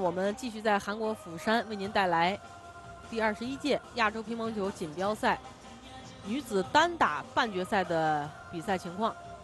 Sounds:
Speech, Music

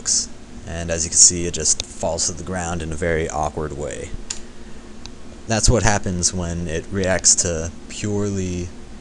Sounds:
Speech

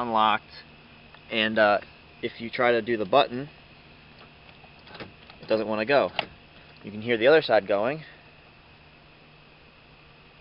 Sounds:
Speech

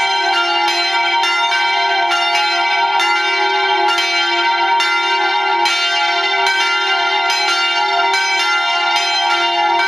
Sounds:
Bell

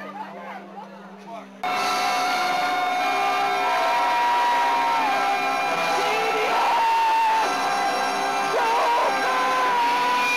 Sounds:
Music, Speech

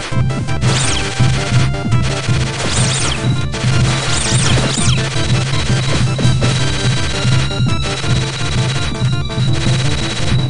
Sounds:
Music

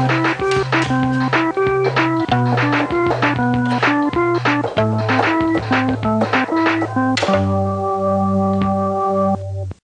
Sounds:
Music

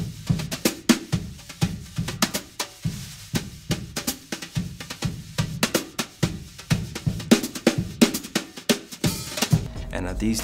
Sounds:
Music, Speech

